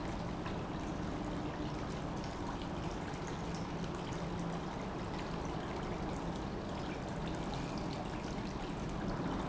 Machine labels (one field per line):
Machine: pump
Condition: normal